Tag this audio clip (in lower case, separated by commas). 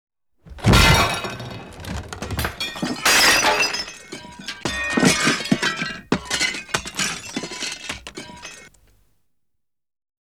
shatter, glass